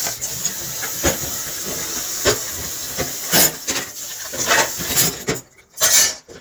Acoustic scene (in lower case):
kitchen